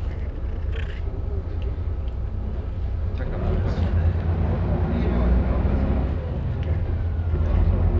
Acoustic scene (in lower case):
bus